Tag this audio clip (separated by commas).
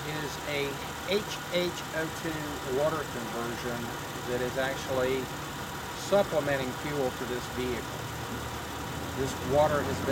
Vehicle, Speech, Car